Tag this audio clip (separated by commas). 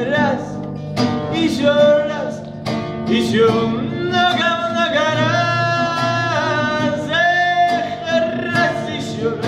Singing, inside a small room, Guitar, Music